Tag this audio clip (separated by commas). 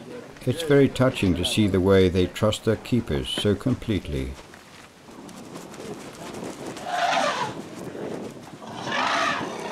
Speech, Animal, Wild animals